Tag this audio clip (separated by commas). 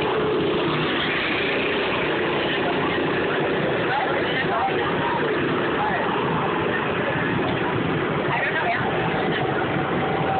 Speech, Motor vehicle (road), Vehicle, Car